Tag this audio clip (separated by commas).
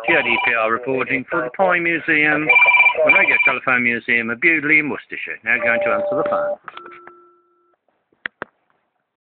Speech